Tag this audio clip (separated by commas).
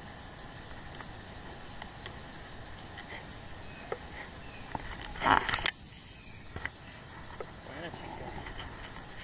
Speech